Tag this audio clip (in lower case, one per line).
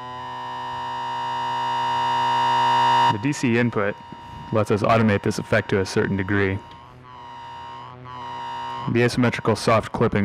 speech